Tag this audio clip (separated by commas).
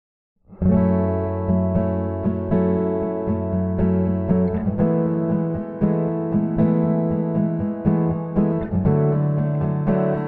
Musical instrument, Guitar, Plucked string instrument